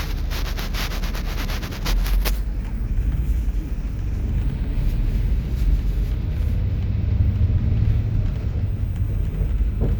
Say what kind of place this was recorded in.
bus